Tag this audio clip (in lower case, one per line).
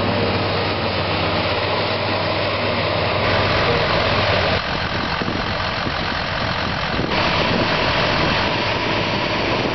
vehicle